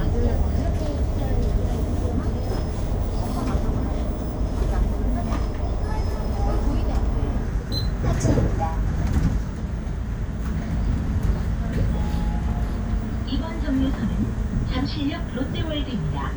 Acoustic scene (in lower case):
bus